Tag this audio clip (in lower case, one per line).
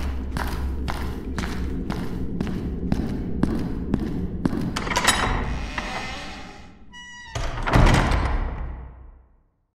echo